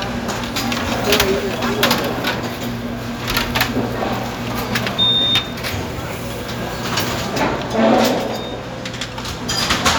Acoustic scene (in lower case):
restaurant